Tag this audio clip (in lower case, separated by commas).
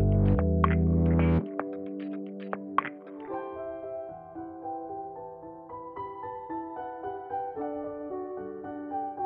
music